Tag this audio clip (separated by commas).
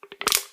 Crushing